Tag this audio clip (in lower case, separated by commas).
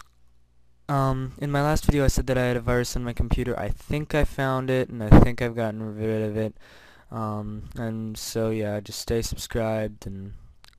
speech